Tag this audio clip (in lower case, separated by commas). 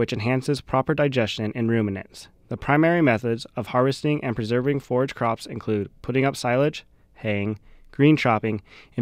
speech